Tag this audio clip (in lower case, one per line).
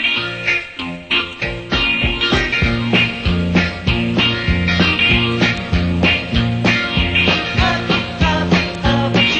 music